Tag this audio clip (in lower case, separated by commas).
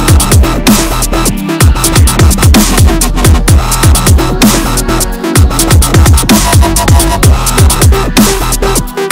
drum and bass, music